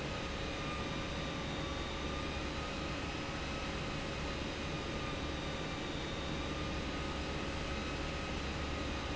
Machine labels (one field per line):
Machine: pump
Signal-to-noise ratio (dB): -6 dB